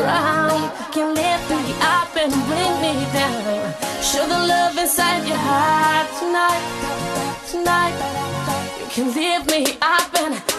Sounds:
singing
music

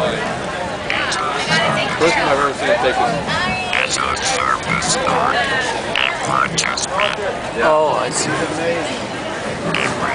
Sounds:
music
speech

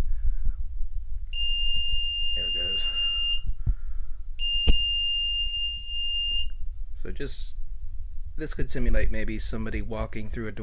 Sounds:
speech

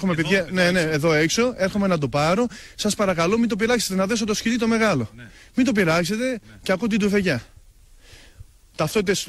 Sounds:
speech

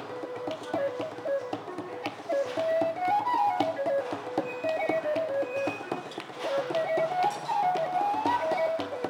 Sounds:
whistle

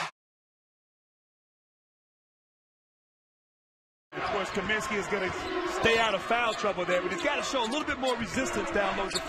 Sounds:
speech

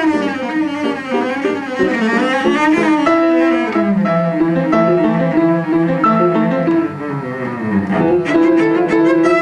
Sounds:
bowed string instrument
musical instrument
music
cello
double bass

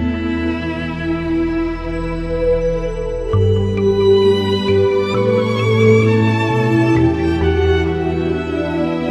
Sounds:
music
new-age music

